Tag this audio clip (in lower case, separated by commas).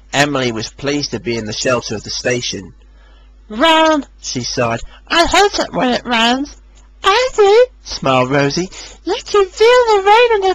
speech